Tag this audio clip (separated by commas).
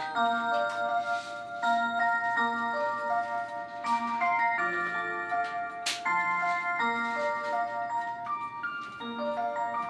Music